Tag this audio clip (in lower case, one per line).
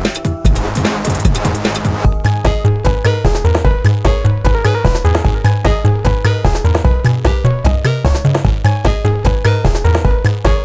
music